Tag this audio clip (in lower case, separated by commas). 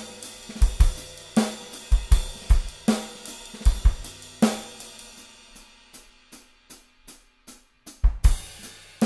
cymbal, drum kit, hi-hat, drum, music, musical instrument, percussion, bass drum